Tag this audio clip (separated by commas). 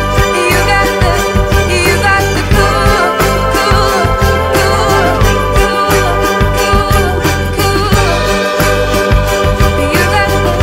Orchestra, Music, Singing